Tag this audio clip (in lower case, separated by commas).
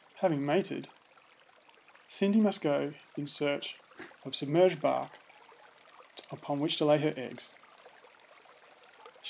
speech